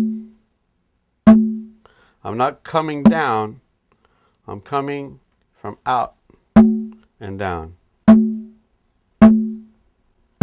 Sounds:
playing congas

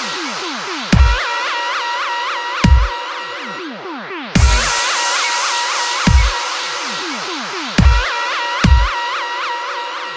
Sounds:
music, dubstep

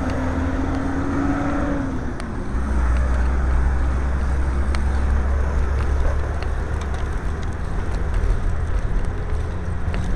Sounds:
outside, urban or man-made, bicycle

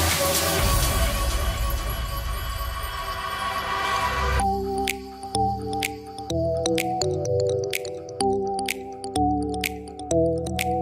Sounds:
soundtrack music, music

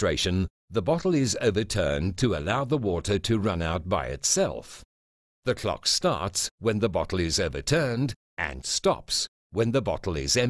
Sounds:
speech

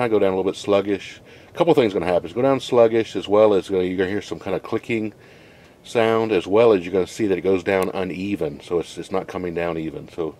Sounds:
speech

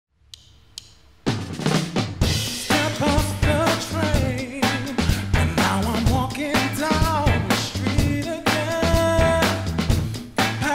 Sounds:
music, playing bass drum, singing, bass drum

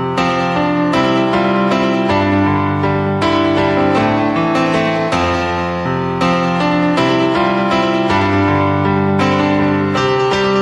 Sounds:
music

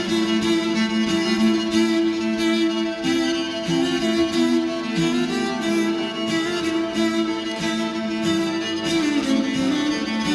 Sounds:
music, musical instrument, fiddle

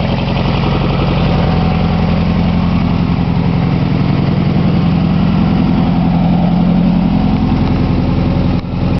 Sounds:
car, vehicle

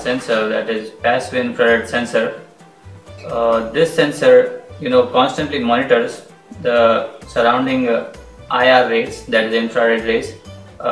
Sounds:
music

